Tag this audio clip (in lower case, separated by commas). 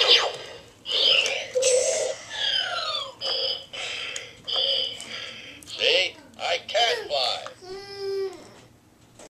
speech